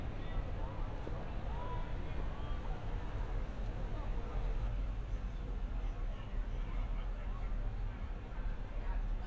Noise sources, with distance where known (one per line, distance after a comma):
person or small group talking, far